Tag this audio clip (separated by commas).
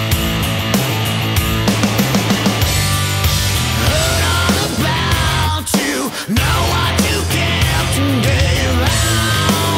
Music, Exciting music